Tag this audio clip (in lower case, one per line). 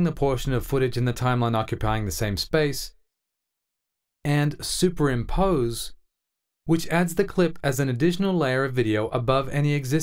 speech